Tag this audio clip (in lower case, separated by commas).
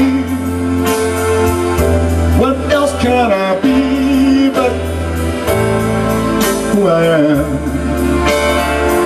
male singing, music